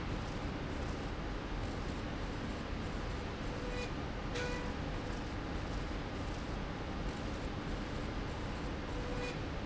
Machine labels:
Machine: slide rail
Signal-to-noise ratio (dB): -6 dB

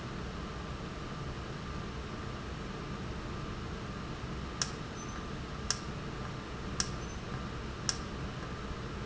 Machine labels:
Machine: valve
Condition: normal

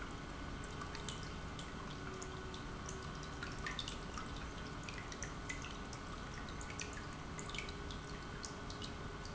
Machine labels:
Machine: pump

